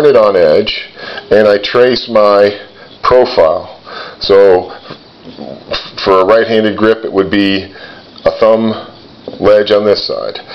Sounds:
inside a small room
speech

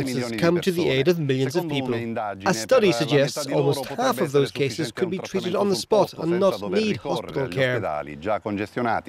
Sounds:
speech

